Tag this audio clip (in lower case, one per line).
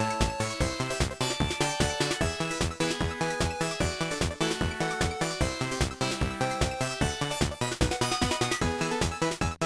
music